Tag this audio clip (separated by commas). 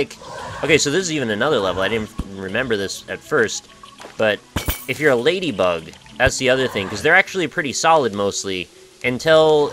Speech